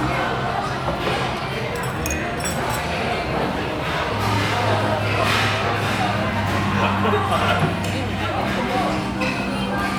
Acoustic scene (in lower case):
restaurant